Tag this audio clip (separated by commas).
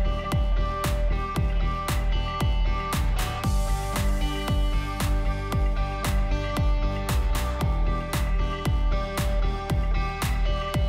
Music